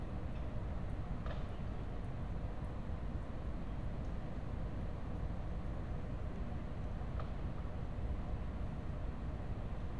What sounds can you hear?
unidentified impact machinery